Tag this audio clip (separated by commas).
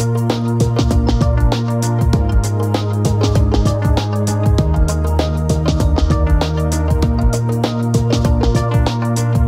Music